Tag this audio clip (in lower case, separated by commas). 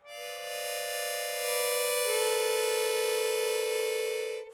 music, musical instrument, harmonica